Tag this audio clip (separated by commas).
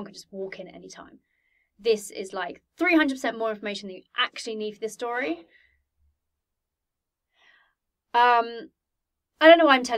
Speech